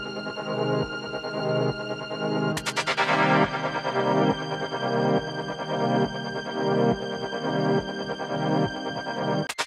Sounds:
music

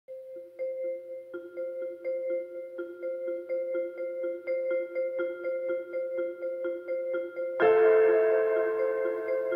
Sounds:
tubular bells, music

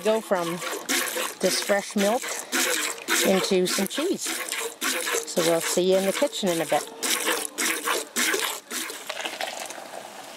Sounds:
speech

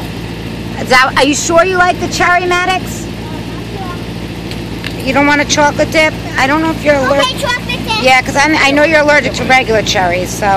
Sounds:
vehicle, speech

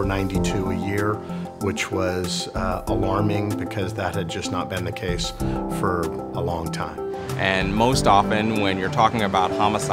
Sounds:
speech, music

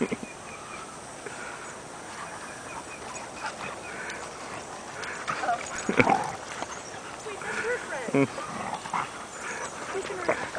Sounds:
pig oinking, oink

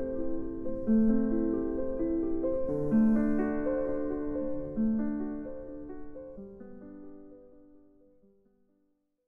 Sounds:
classical music, music

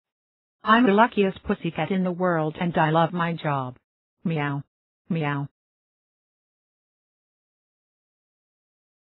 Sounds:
speech

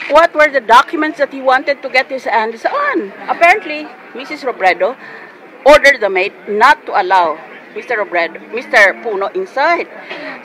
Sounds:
speech

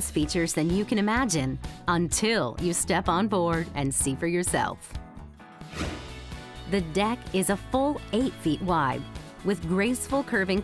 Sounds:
speech, music

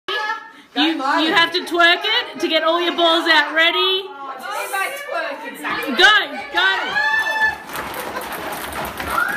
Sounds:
speech, chuckle

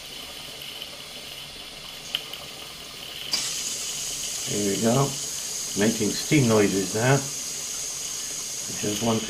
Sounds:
engine, speech, steam

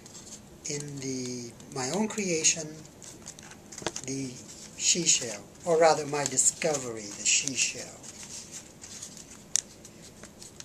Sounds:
speech, inside a small room

